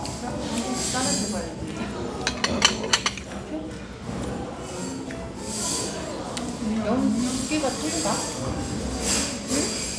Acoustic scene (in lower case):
restaurant